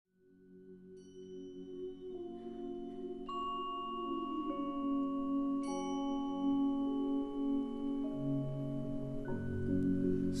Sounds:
Music, Musical instrument

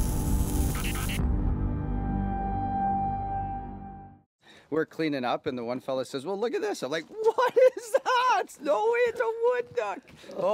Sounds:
Speech, Music

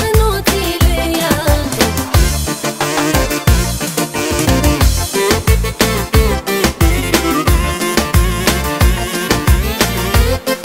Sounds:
Music

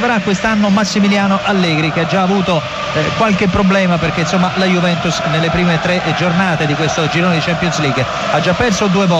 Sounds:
Speech

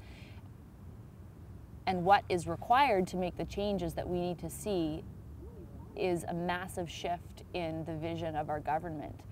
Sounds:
Speech

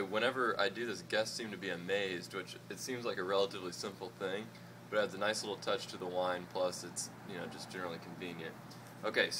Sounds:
Speech

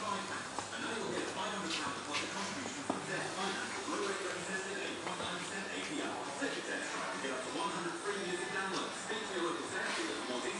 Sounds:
Speech

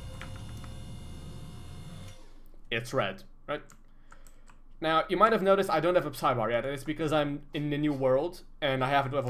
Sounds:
Speech

